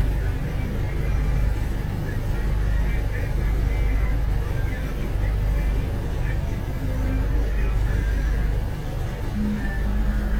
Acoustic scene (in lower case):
bus